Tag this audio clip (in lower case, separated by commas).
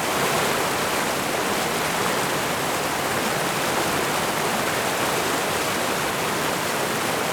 water